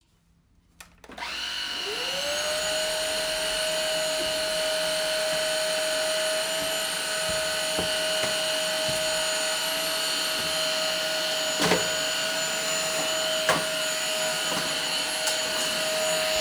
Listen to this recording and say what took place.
I placed the phone on a table and started the vacuum cleaner while walking around the room.